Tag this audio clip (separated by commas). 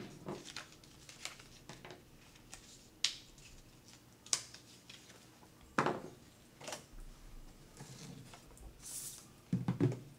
inside a small room